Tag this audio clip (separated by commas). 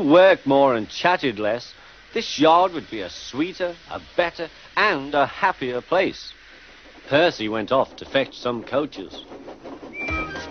Speech